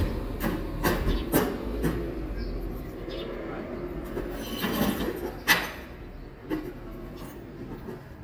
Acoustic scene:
residential area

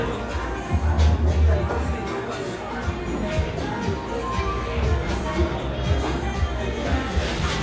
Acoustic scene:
cafe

